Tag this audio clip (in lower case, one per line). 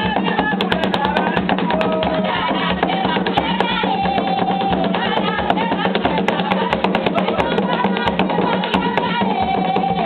music
female singing